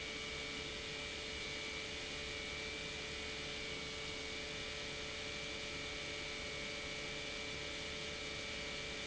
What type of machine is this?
pump